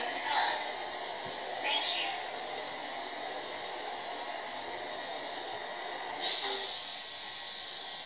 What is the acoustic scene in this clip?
subway train